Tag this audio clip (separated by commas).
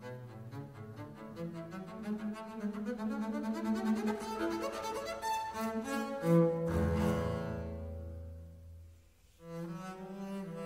Violin, Musical instrument, Cello, Classical music, Music